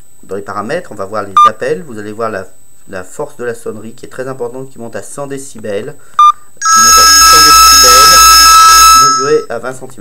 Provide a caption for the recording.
A man speaking and a phone ringing